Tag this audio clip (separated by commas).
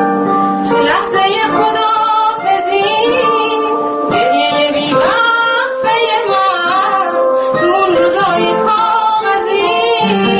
Music